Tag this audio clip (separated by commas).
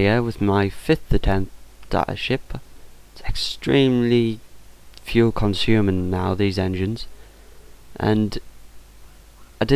Speech